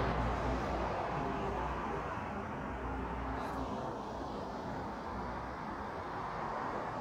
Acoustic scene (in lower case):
street